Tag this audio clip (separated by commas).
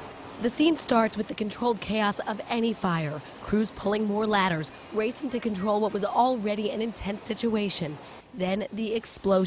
Speech